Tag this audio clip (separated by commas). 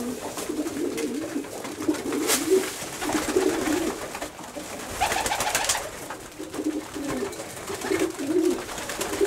Bird, inside a small room, dove